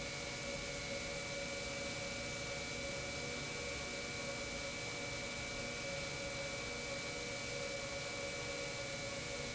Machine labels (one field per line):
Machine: pump